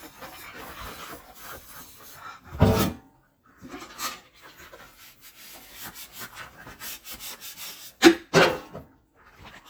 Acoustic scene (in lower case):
kitchen